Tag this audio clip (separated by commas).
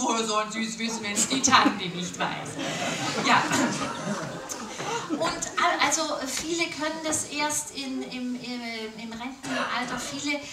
Speech